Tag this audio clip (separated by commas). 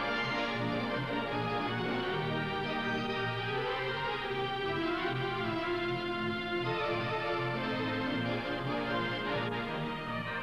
playing electronic organ